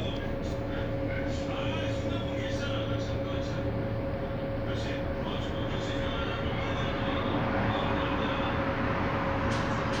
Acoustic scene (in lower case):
bus